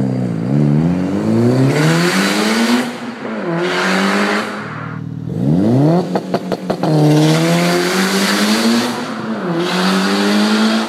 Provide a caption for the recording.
A car is speeding by